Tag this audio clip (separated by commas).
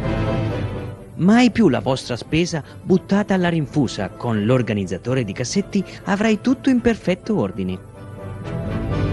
Speech, Music